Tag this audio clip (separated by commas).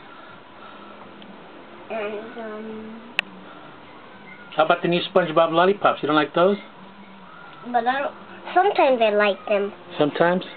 Speech